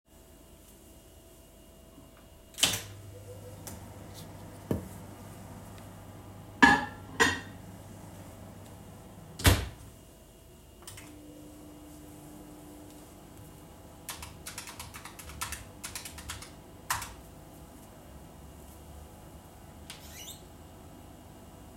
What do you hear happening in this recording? I placed food in the microwave and started it. While waiting, I sat down and typed a message on my laptop keyboard. Once the microwave finished, I stood up and opened the window to let steam out.